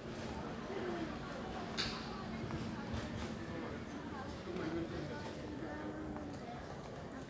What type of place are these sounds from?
crowded indoor space